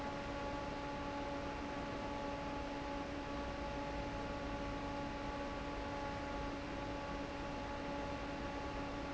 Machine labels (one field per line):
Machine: fan